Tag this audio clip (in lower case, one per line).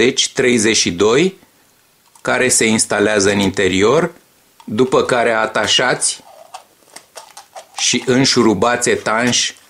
speech